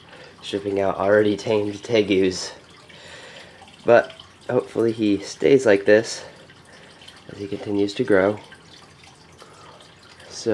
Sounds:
water

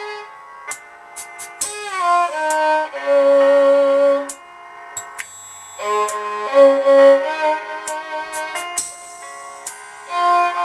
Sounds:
musical instrument, music, fiddle

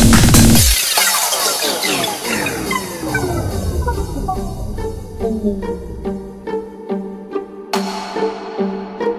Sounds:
soundtrack music, music

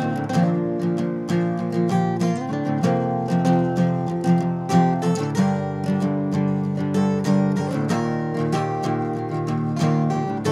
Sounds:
music, guitar, musical instrument, plucked string instrument, acoustic guitar

